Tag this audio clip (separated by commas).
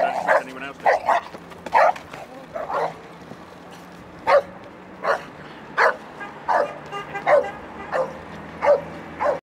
pets, Dog, Speech, Animal, Bow-wow